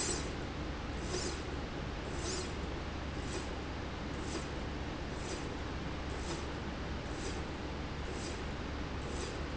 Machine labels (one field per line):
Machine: slide rail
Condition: normal